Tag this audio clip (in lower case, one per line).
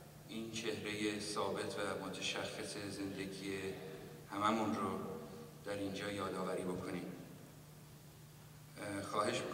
monologue
speech
male speech